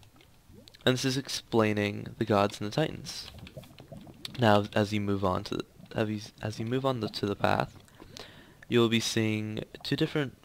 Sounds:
Liquid, Speech

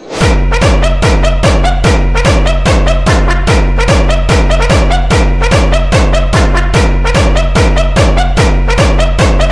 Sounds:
Pop music, Music

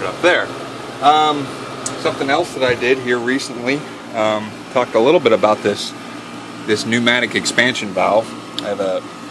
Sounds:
Speech

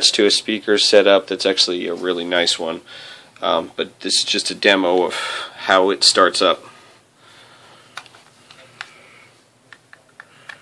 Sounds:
Speech

